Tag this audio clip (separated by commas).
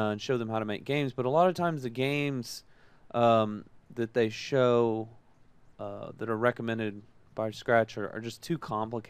Speech